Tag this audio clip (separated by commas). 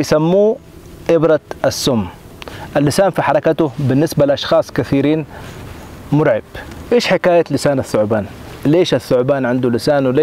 outside, rural or natural, Speech